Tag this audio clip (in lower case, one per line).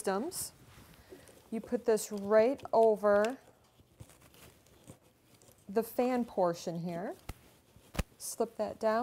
speech